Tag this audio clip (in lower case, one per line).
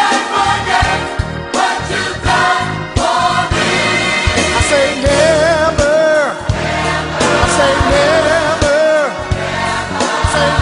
music
exciting music
rhythm and blues
choir